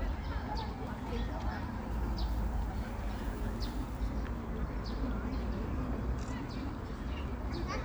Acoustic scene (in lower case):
park